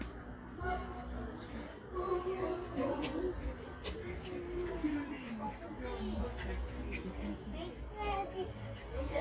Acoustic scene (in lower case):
park